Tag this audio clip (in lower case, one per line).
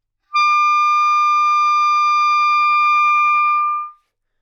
music
musical instrument
wind instrument